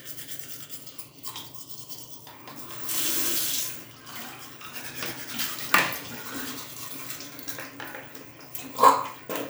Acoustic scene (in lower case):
restroom